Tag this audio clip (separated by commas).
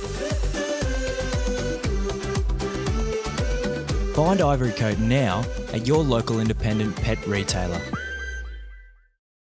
Speech, Music